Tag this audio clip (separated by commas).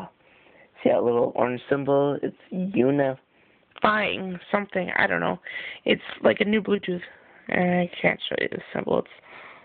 Speech